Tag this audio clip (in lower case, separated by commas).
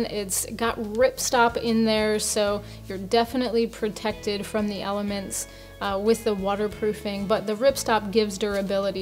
speech, music